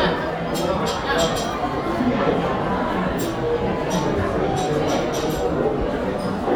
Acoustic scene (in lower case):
crowded indoor space